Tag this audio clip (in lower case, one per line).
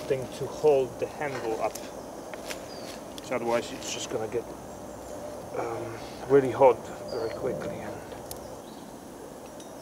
outside, rural or natural
speech